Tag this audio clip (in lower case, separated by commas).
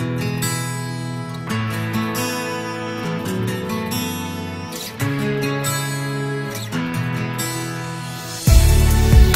music